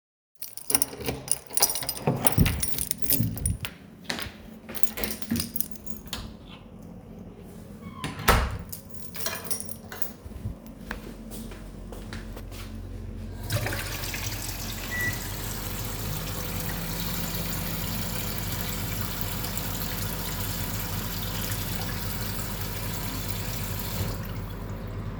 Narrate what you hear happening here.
i enterd my kitchen and got a cup of water while heating my food